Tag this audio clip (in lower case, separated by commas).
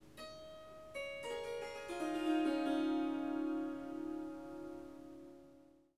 harp, musical instrument, music